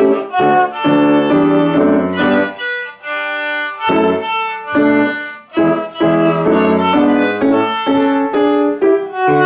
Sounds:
musical instrument, music, violin

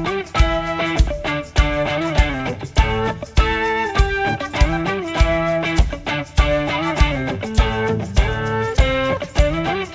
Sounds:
music, background music

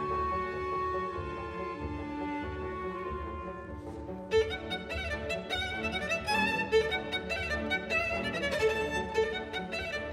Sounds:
fiddle, musical instrument, music

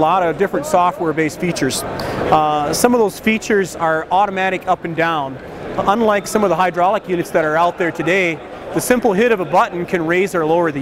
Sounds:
speech

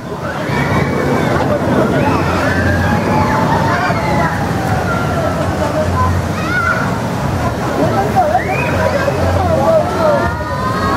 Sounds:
speech, water

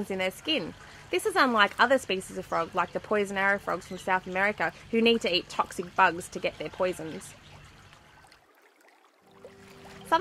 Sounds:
speech

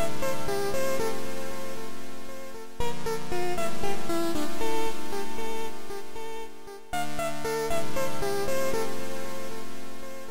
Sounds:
music, theme music

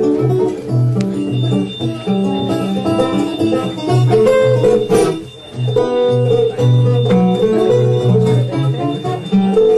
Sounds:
plucked string instrument, guitar, music, musical instrument, acoustic guitar

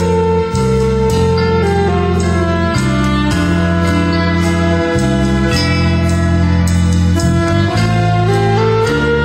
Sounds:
tender music, music

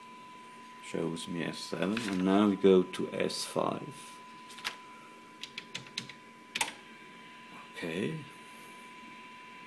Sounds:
speech

